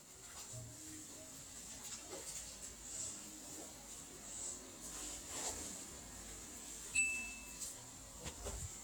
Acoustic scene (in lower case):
kitchen